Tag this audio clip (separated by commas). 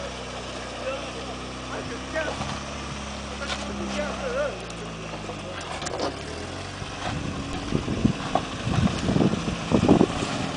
Vehicle, Car, Accelerating, Medium engine (mid frequency), Speech